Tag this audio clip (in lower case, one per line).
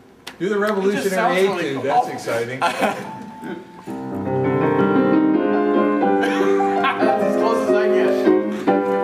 speech
music